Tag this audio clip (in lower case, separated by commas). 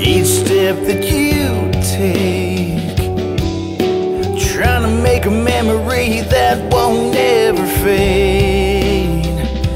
music